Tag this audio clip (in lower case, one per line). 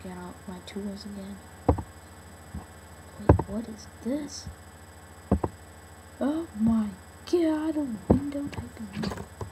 speech